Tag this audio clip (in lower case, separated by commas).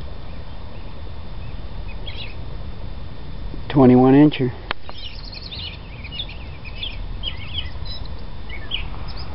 speech, animal